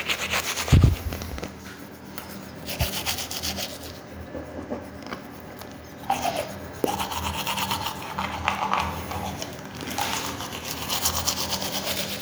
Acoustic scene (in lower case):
restroom